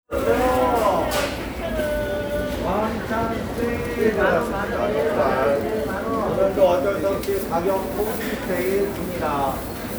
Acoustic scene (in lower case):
crowded indoor space